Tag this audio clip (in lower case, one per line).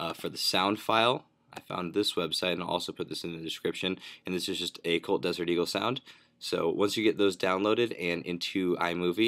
speech